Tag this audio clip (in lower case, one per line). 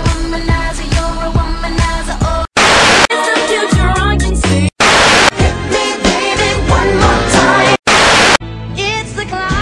music
exciting music